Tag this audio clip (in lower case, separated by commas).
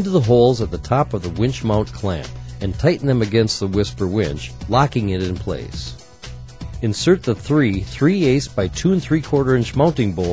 speech, music